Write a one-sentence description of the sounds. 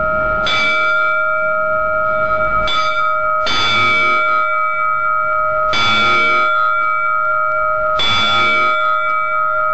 Bells are ringing and being hit very loudly